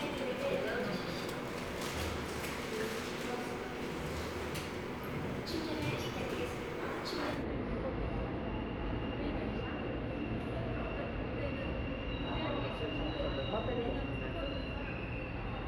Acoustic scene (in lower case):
subway station